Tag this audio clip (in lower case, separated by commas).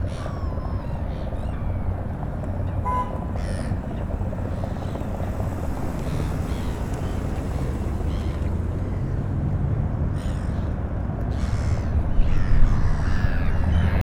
vehicle, motor vehicle (road)